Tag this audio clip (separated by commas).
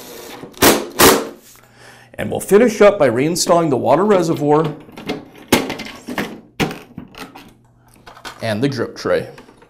Tap, Speech